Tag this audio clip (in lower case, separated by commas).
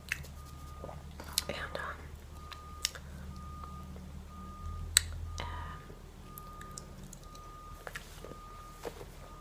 speech